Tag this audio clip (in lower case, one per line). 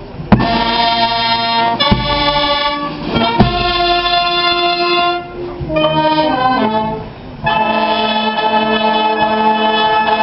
music